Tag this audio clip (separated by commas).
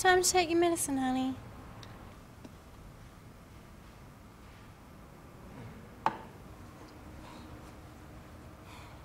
Speech